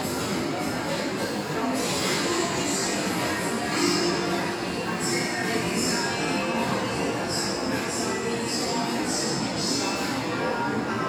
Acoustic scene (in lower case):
restaurant